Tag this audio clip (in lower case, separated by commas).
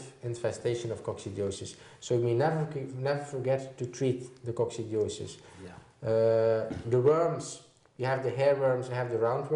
inside a small room, speech